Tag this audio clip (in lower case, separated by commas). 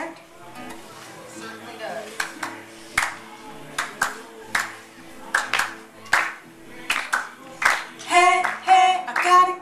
music, speech